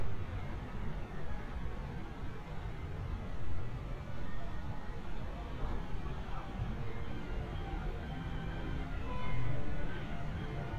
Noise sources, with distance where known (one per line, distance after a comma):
car horn, far
music from an unclear source